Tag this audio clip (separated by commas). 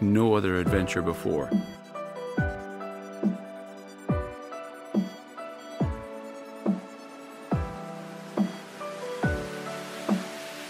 Speech, Music